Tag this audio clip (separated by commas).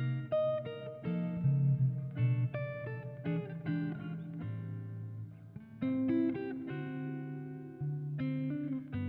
Musical instrument, Guitar, Plucked string instrument, Music